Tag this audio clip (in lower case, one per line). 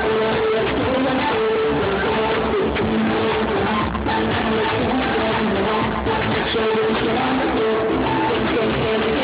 music